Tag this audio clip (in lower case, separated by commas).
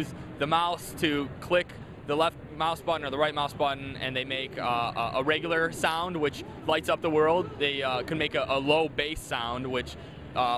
speech